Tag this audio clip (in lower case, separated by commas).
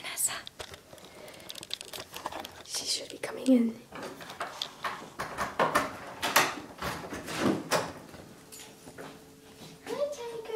speech, inside a large room or hall, door